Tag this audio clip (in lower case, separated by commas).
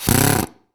drill, power tool, tools